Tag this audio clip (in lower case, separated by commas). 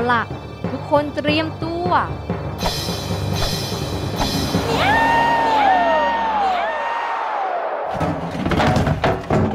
child speech, music, speech